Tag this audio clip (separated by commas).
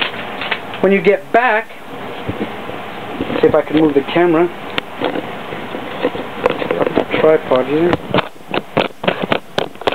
Speech